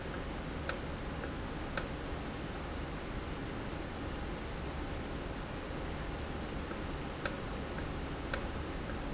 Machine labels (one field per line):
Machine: valve